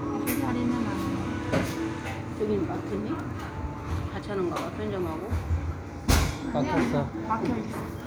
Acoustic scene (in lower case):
cafe